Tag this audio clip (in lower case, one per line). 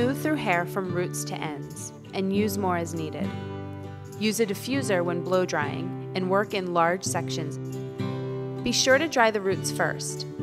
speech
music